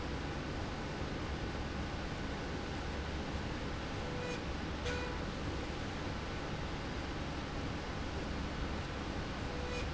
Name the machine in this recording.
slide rail